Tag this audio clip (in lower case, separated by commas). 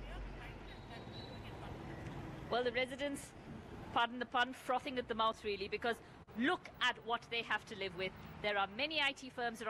speech